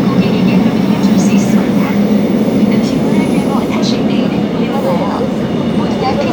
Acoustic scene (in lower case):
subway train